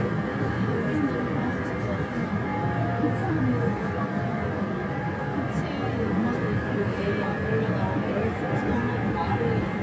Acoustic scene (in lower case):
subway train